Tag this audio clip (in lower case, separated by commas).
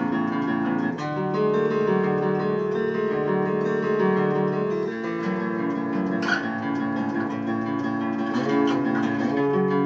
plucked string instrument, music, acoustic guitar, guitar, musical instrument